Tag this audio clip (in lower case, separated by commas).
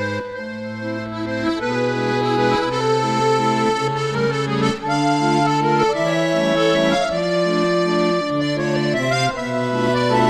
music, soundtrack music, accordion